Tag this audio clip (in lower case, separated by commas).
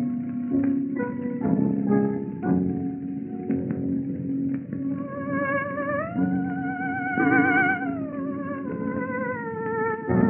music, theremin